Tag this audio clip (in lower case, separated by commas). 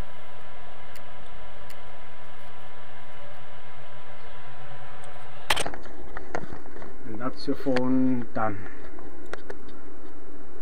speech